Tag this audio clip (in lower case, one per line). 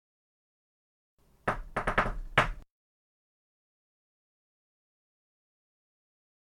knock
home sounds
door